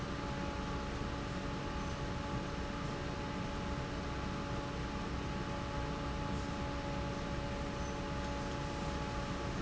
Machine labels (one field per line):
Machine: fan